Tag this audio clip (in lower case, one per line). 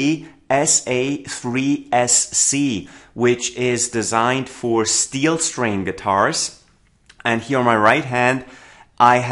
speech